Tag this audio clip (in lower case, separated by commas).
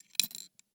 domestic sounds, coin (dropping)